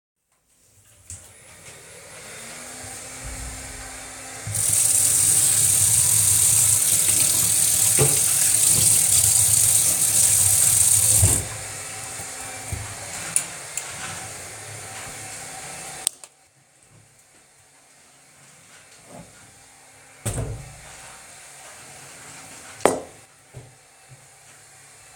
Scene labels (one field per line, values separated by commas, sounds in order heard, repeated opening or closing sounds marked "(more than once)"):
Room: kitchen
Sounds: vacuum cleaner, running water, wardrobe or drawer, cutlery and dishes